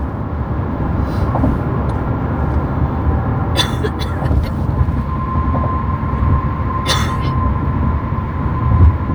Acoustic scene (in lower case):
car